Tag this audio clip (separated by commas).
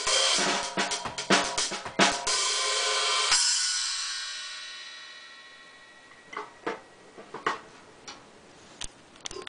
Music, Musical instrument, Drum kit